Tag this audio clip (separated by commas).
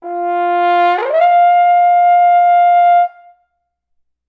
Music, Musical instrument, Brass instrument